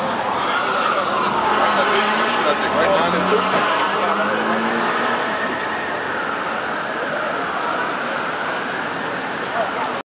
A fire truck is ringing its siren and driving down a busy city street